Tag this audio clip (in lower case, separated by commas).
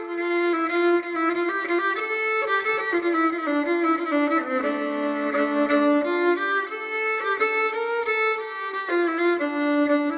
violin, music, musical instrument